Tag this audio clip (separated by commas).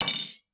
home sounds, Cutlery